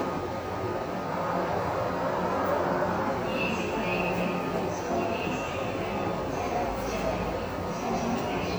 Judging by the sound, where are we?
in a subway station